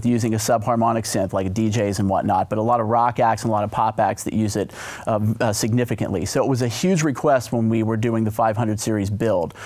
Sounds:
speech

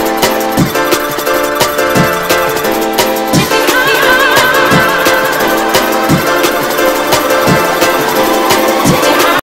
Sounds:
harpsichord, music

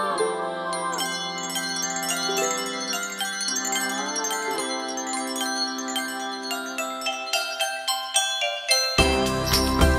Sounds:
glockenspiel, percussion, music, inside a large room or hall

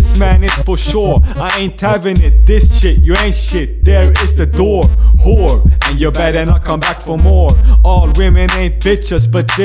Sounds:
music

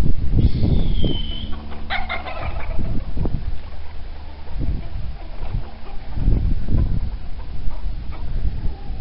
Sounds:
pigeon, bird

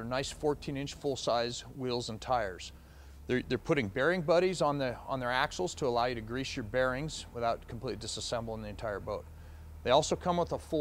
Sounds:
speech

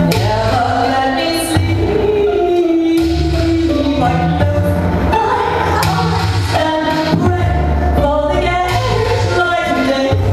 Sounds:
music

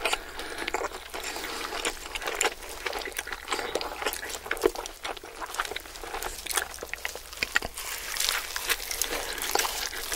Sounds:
people eating noodle

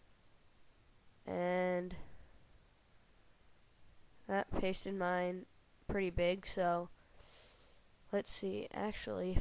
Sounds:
speech

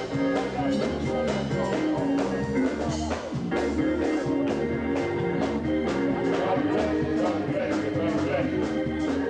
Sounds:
exciting music, music, rhythm and blues, speech, pop music

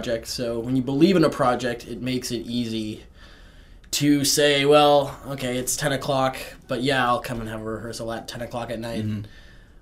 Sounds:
speech

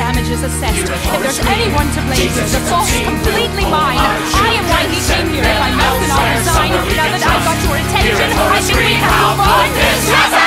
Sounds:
speech, hip hop music, music

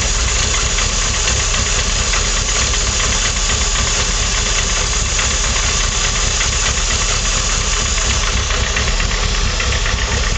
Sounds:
vehicle, idling

